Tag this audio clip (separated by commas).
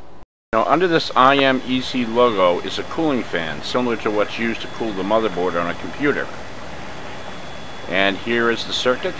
Speech